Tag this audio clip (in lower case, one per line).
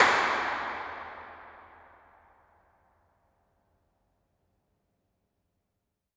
hands
clapping